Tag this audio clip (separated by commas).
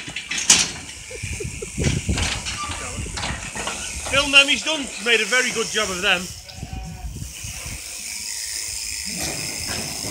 Speech, Sheep, Bleat